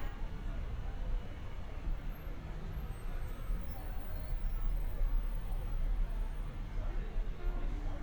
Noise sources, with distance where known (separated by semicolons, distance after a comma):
car horn; person or small group talking, far